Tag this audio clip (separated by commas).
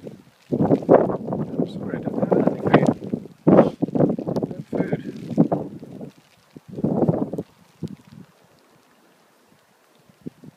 Speech